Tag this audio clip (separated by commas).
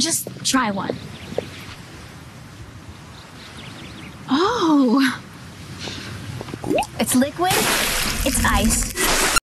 Speech, Squish, Drip